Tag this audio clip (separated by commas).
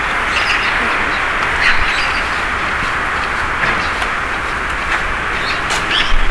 Animal, Wild animals, Bird